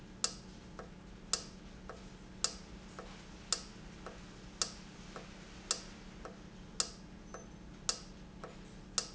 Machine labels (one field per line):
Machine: valve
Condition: normal